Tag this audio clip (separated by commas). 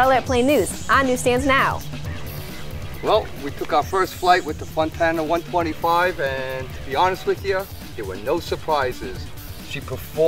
Music, Radio, Speech